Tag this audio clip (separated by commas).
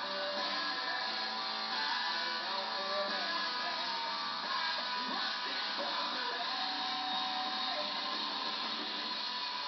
Music